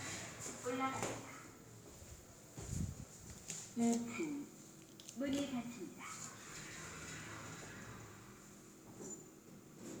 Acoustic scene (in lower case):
elevator